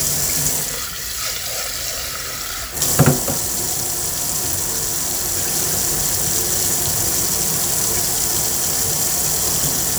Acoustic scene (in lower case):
kitchen